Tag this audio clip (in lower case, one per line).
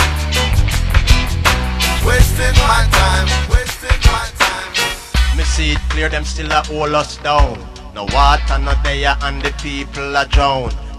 singing
music